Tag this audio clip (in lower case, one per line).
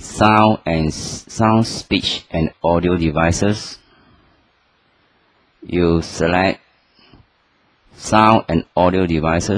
speech